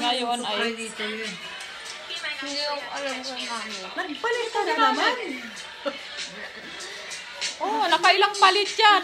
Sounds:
Speech, Music

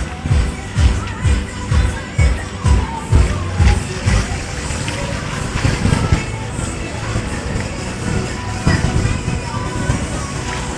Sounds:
Music

